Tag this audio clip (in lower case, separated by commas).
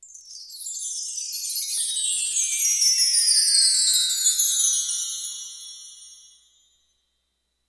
chime, wind chime, bell